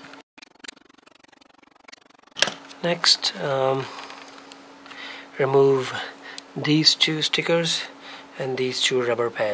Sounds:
speech

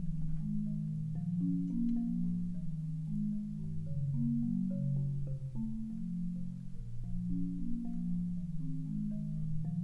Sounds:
vibraphone, music

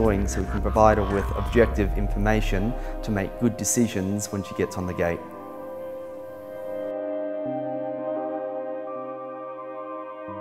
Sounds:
ambient music

